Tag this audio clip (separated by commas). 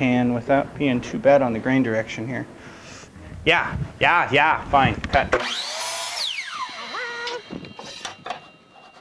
Speech, Tools, Drill